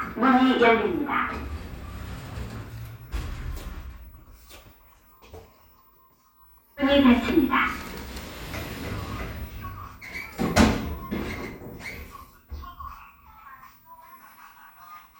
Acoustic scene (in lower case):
elevator